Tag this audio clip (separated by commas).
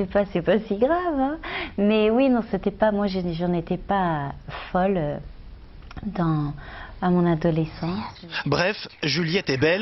Speech